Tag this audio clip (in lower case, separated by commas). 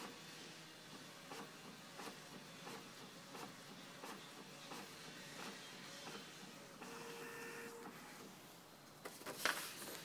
printer